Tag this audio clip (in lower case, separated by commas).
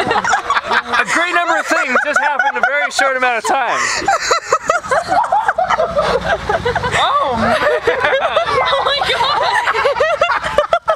speech